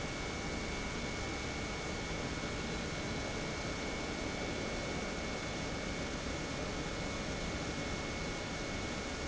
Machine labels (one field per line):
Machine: pump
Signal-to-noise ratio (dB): -6 dB